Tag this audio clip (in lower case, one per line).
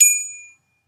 bell